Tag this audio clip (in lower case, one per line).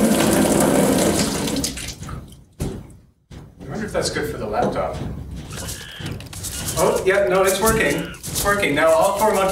speech
inside a small room
fill (with liquid)